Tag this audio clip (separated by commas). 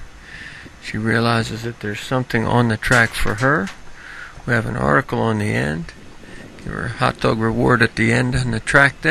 Speech